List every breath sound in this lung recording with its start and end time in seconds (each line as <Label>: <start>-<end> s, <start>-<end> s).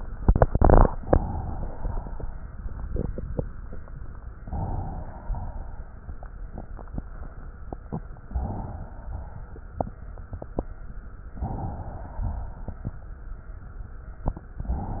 Inhalation: 4.36-5.25 s, 8.24-8.99 s, 11.34-12.13 s
Exhalation: 5.25-7.99 s, 9.01-11.19 s, 12.12-14.44 s
Crackles: 5.25-7.99 s, 9.01-11.19 s, 12.12-14.44 s